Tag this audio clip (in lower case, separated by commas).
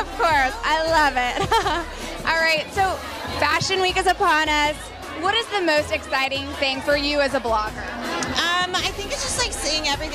music, speech